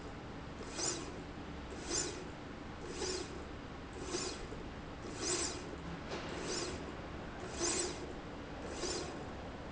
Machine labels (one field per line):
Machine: slide rail